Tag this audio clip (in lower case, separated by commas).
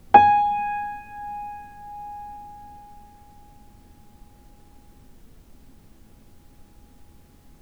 keyboard (musical), piano, music, musical instrument